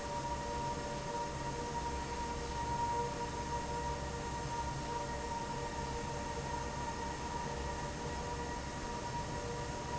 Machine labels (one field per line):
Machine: fan